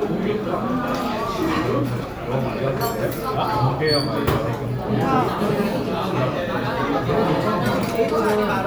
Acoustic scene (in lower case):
restaurant